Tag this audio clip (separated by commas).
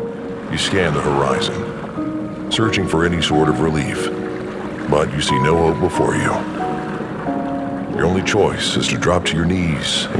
Music, Speech